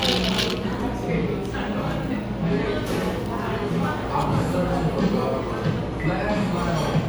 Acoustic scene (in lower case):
cafe